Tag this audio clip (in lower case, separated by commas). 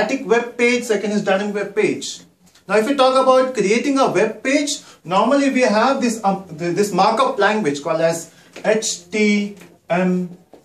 speech